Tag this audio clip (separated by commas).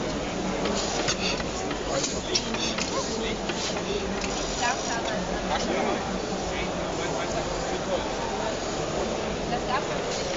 Speech